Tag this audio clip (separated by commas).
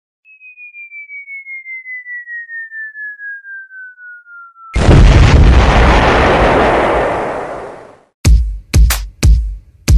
Music